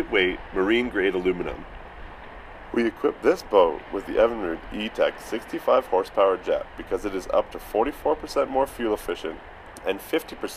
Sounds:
Speech, Vehicle, speedboat

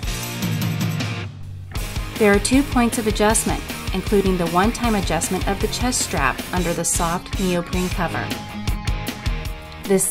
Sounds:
Music, Speech

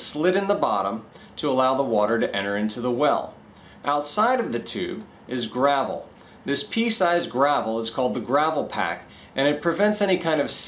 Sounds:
Speech

